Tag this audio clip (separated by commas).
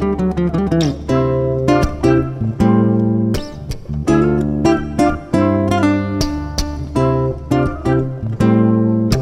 Plucked string instrument, Musical instrument, Acoustic guitar, Guitar, playing bass guitar, Bass guitar